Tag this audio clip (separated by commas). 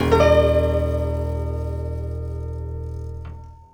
Music, Keyboard (musical), Musical instrument, Piano